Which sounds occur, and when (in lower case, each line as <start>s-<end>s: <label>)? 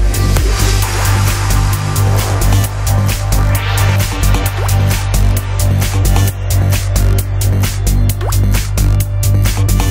0.0s-9.9s: music
4.5s-4.7s: drip
8.2s-8.3s: drip